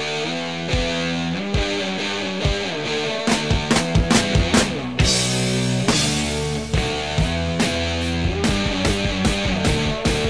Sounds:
Music

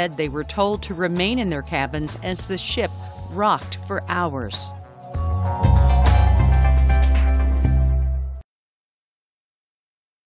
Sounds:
Speech, Music

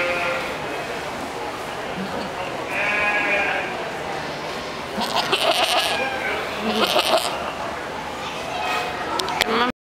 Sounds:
Bleat, Sheep, sheep bleating

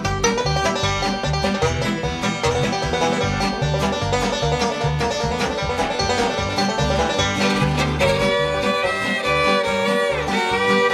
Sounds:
Banjo, Music

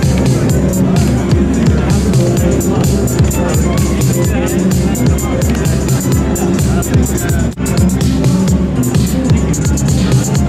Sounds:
Music, Drum machine

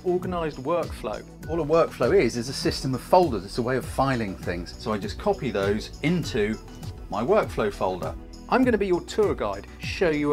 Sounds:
Music, Speech

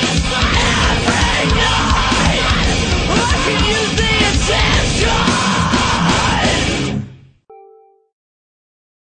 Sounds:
Music

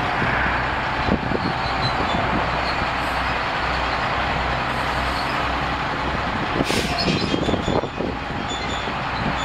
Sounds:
outside, urban or man-made, Vehicle

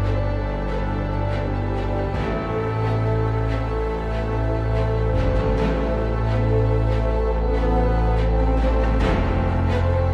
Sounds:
Music

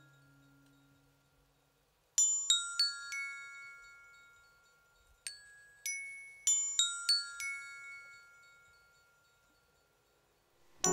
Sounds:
inside a large room or hall, Music

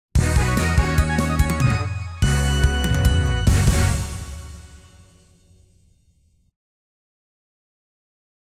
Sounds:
Music, Ska, Middle Eastern music

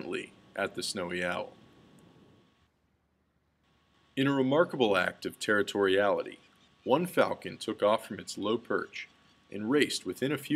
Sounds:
Speech

